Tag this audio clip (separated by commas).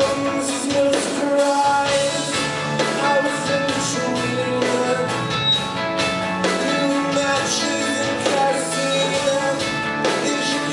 Music